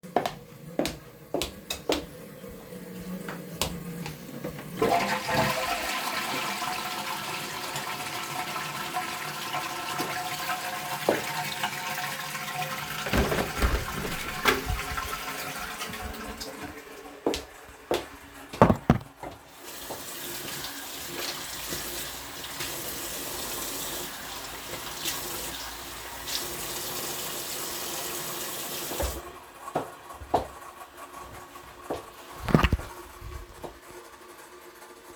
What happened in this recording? I entered the bathroom and flushed the toilet. At the same time I opened the window. Then I turned on the tap in the sink, stopped the water and left the bathroom.